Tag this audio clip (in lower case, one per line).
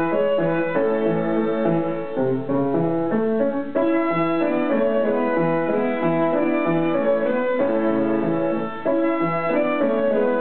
musical instrument
music
violin